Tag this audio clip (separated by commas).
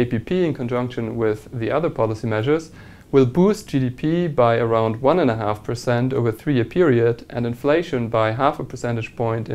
Speech